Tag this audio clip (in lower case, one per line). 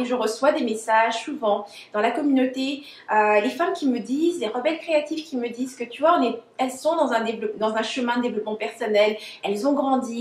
speech